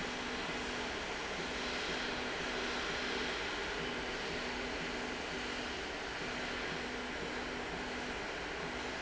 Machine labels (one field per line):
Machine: slide rail